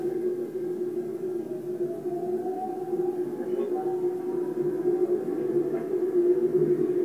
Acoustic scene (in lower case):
subway train